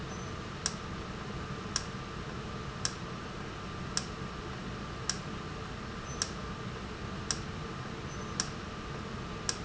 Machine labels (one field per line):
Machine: valve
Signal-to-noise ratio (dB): -6 dB